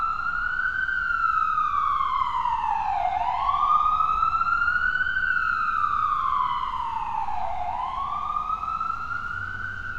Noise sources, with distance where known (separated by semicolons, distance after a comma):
siren, far